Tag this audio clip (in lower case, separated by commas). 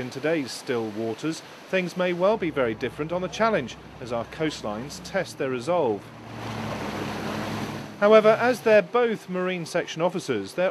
speech